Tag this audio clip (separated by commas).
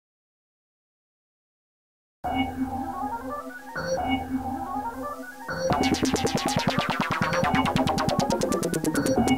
Drum machine